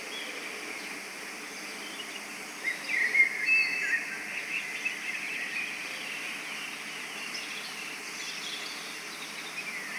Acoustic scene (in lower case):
park